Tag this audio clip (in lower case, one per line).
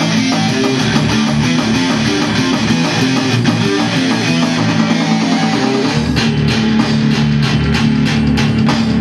musical instrument
music
plucked string instrument
guitar
heavy metal
rock music